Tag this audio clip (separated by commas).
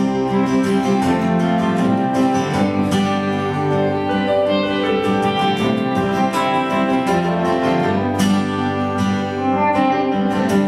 Jazz, Bowed string instrument, Plucked string instrument, Music, Musical instrument